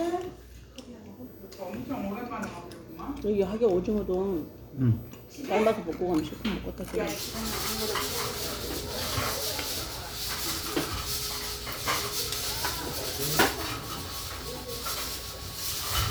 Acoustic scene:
restaurant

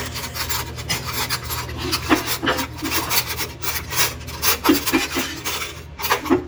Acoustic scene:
kitchen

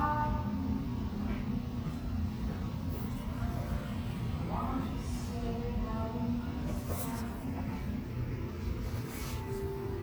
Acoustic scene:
cafe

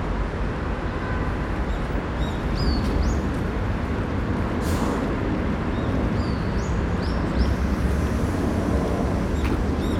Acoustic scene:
park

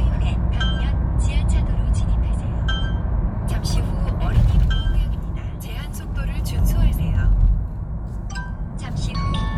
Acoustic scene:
car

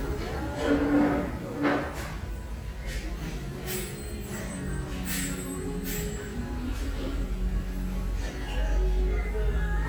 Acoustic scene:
restaurant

